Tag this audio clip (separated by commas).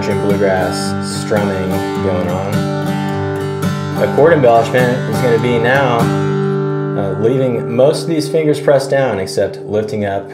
Strum, Guitar, Country, Speech, Music, Acoustic guitar, Plucked string instrument, Musical instrument